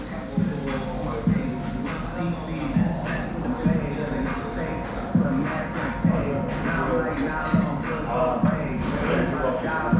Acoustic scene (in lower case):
restaurant